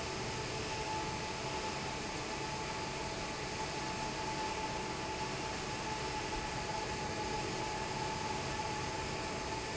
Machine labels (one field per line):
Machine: fan